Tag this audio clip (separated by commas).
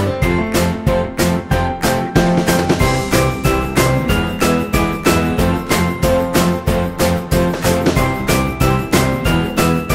Music